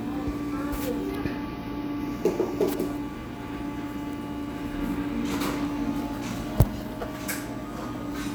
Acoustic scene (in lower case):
cafe